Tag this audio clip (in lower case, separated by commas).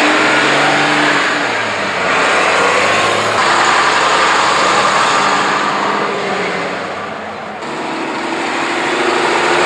vehicle, truck, motor vehicle (road)